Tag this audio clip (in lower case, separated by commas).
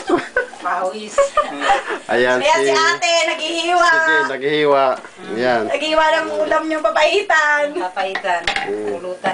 speech